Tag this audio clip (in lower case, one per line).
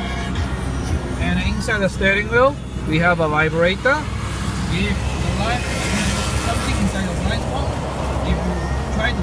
motor vehicle (road)